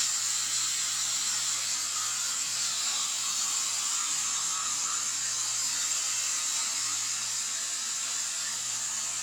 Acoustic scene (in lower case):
restroom